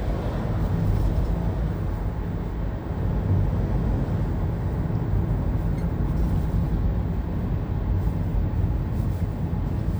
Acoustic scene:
car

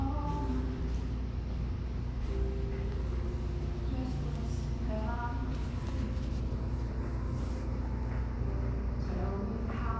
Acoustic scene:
cafe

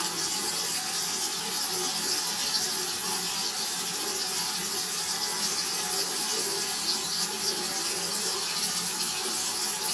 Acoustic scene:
restroom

